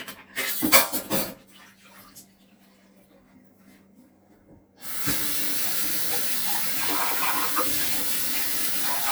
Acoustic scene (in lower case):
kitchen